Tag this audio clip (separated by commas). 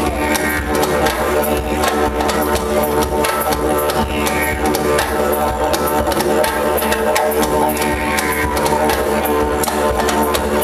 playing didgeridoo